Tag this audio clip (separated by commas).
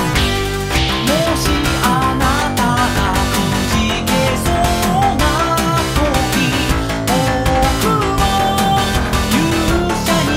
Music